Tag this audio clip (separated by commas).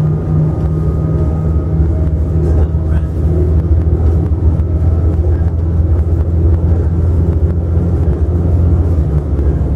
Speech